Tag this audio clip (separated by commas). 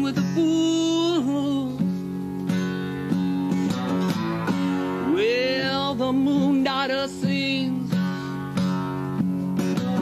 Music, Guitar, Plucked string instrument, Musical instrument, Strum